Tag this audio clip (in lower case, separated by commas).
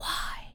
human voice, whispering